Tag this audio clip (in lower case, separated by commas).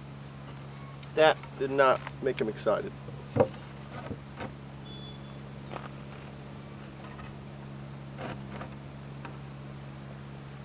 insect, speech